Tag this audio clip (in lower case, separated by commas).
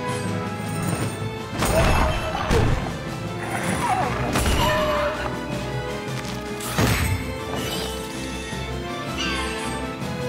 music